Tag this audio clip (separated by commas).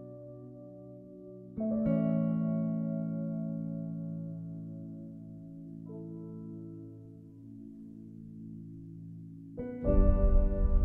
Piano, Music